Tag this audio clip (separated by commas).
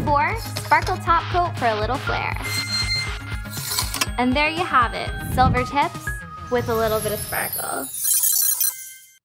Speech, Music